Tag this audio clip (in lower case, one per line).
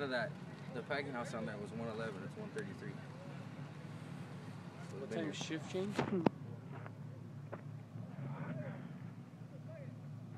speech